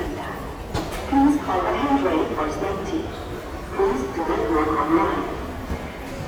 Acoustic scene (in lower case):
subway station